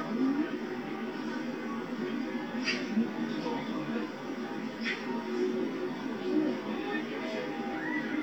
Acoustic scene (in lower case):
park